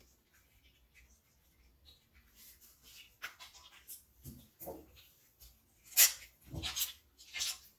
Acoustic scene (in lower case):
restroom